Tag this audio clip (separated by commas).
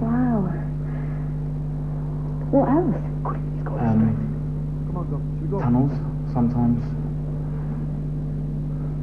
Speech